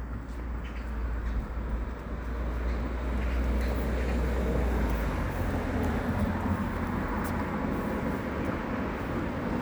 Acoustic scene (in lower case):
residential area